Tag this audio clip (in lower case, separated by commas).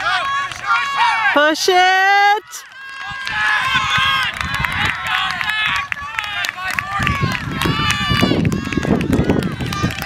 outside, rural or natural, speech